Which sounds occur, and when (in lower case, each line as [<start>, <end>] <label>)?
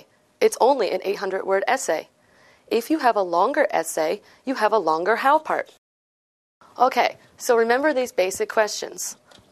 [0.00, 5.76] mechanisms
[0.39, 2.05] man speaking
[2.13, 2.66] breathing
[2.66, 4.19] man speaking
[4.19, 4.42] breathing
[4.44, 5.76] man speaking
[6.59, 9.51] mechanisms
[6.75, 7.15] man speaking
[7.36, 9.13] man speaking
[8.26, 8.56] generic impact sounds
[8.99, 9.51] generic impact sounds